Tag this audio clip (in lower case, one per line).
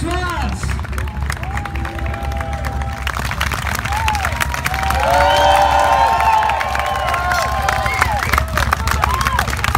people cheering